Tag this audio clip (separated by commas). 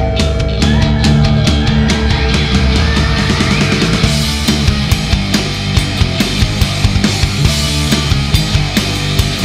Music